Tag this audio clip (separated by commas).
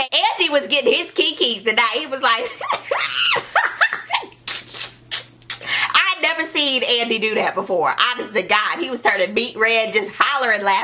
Speech, inside a small room